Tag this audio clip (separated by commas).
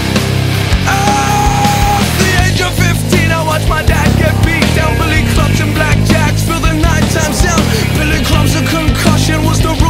Music